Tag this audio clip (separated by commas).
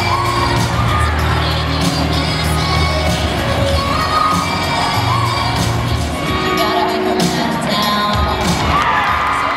Music